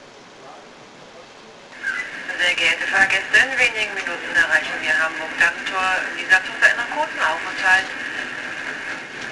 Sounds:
Human voice, Train, Rail transport, Vehicle

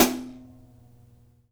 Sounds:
Cymbal, Music, Percussion, Hi-hat, Musical instrument

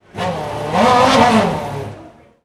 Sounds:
Car, Engine, Vehicle, Motor vehicle (road), Accelerating, Race car

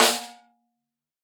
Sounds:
Percussion, Musical instrument, Drum, Music, Snare drum

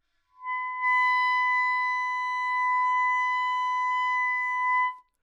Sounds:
Musical instrument, Music, Wind instrument

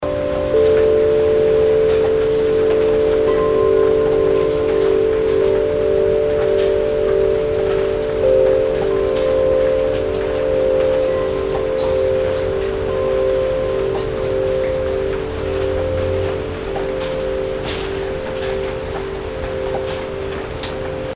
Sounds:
Water, Rain

